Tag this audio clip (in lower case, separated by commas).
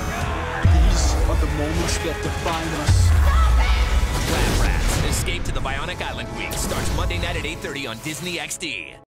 speech, music